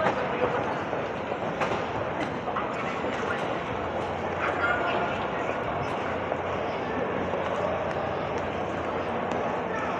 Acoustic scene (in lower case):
subway station